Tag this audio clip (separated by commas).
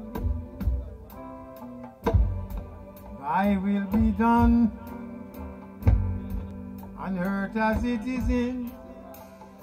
Speech, Music